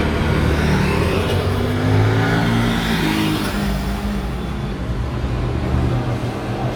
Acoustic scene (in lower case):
street